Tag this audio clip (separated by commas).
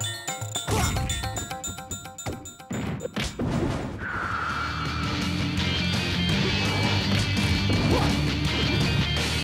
Music